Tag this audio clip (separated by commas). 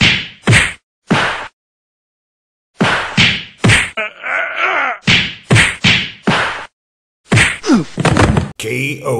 Speech